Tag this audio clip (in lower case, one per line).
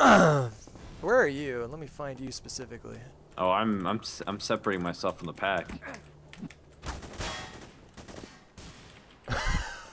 speech